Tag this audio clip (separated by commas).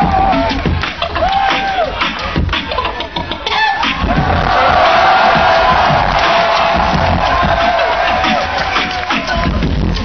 Music